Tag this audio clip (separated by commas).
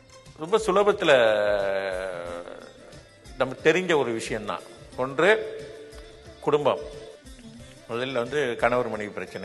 Speech, Music, Narration, Male speech